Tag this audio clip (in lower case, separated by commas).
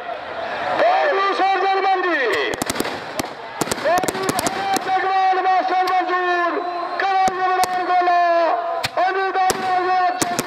speech, outside, rural or natural